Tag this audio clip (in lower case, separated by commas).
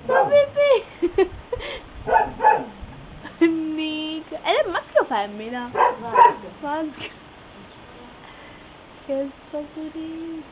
animal, speech